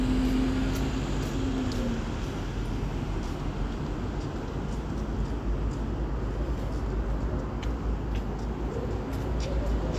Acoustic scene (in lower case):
street